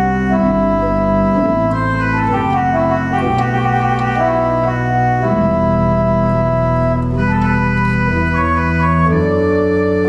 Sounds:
Organ, Musical instrument, Piano, Keyboard (musical), Music

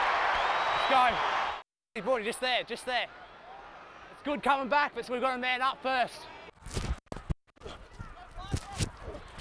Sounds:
Speech, Crowd

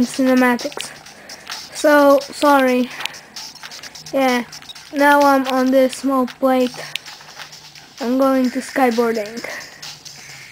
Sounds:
Speech, Music

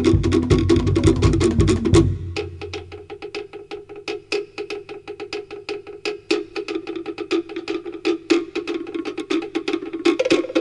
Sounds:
Wood block, Drum, Music, Percussion

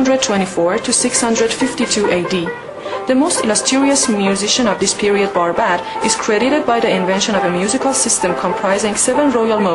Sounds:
Traditional music, Music, Speech

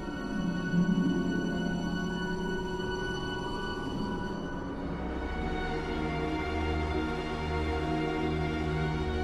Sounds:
Music

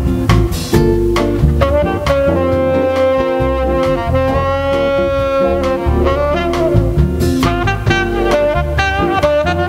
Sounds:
Music

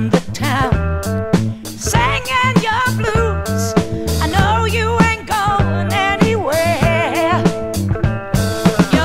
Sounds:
Music

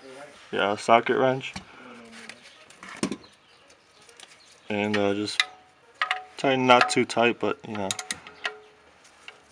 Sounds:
Speech

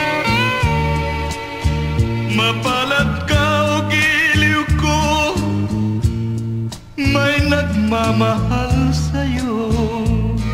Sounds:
Music

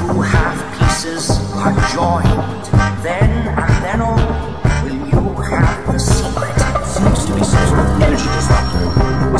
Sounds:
Speech, Soundtrack music, Music

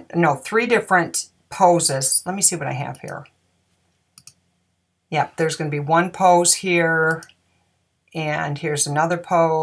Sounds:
Speech

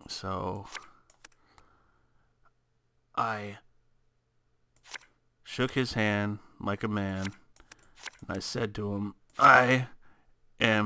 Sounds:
Speech, inside a small room

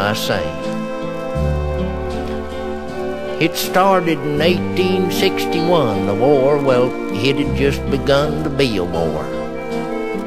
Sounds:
Music, Speech

